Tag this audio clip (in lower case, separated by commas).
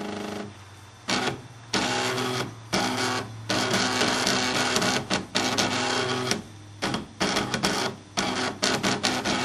printer